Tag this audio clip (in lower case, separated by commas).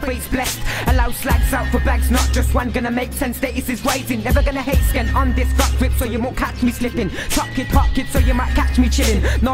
music